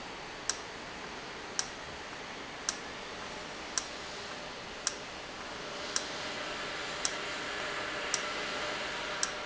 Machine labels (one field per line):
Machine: valve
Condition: normal